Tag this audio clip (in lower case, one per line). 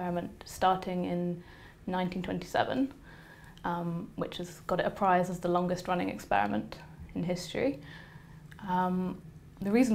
speech
female speech